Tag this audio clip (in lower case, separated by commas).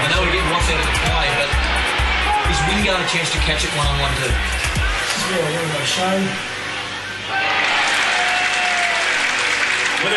music, speech